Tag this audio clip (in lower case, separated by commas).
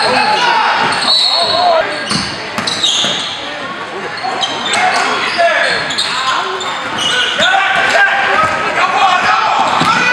swish, basketball bounce